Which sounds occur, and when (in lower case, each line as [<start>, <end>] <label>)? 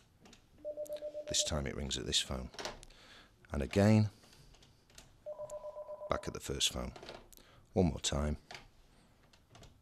[2.87, 3.27] breathing
[4.03, 4.79] sniff
[5.25, 6.18] dial tone
[7.72, 8.36] man speaking
[8.48, 8.63] generic impact sounds